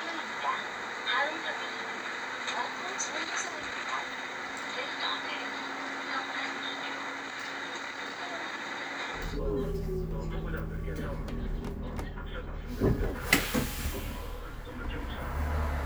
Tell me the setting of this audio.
bus